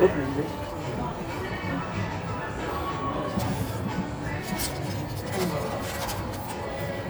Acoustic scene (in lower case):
cafe